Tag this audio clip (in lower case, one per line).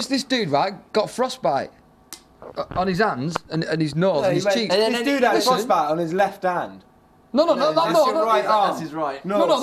speech